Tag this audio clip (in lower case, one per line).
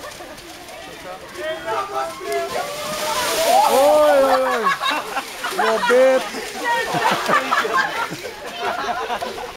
speech
outside, rural or natural